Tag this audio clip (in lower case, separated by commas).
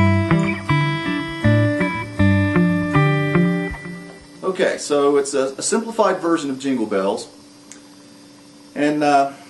music, electric guitar, plucked string instrument, speech, musical instrument